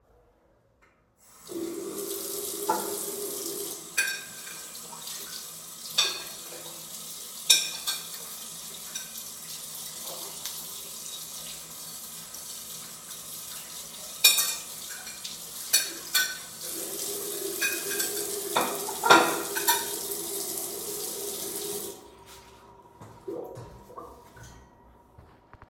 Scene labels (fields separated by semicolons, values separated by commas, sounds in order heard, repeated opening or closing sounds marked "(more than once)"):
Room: bathroom; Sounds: running water, cutlery and dishes